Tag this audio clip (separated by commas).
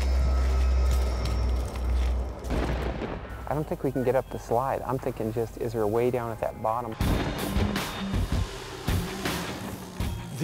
Speech, Music